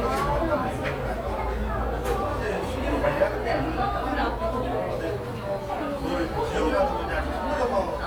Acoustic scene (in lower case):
cafe